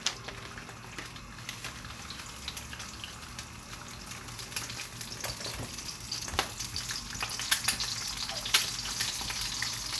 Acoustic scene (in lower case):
kitchen